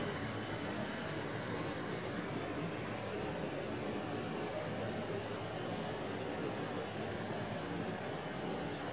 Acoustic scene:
park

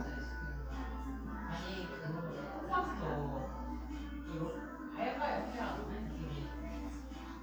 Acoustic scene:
crowded indoor space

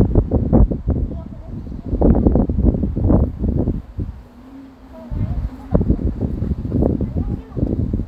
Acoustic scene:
residential area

